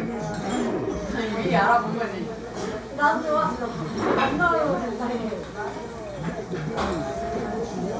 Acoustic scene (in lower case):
cafe